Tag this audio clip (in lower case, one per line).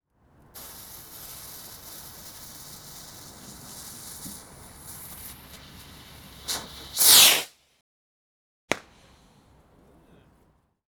fireworks
explosion